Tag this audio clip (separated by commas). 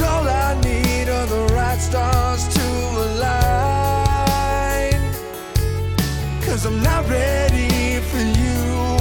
Music, Tender music